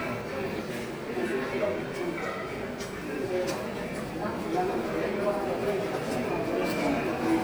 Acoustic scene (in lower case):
subway station